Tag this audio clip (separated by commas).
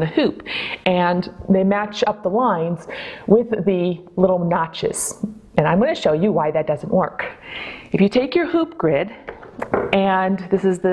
Speech